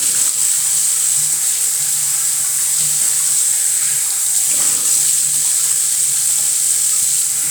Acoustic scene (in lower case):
restroom